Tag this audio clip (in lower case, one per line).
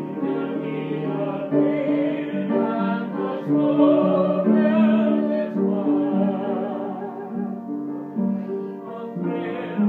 music
female singing
male singing